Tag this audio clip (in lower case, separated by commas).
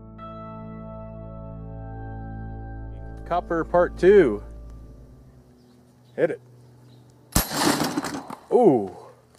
outside, rural or natural, speech, music